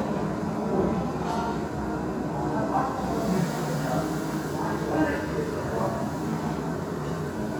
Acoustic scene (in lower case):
restaurant